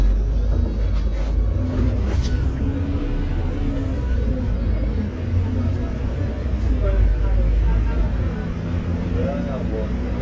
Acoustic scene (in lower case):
bus